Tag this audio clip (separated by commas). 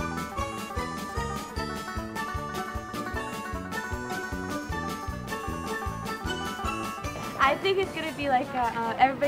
Music, Soundtrack music, Speech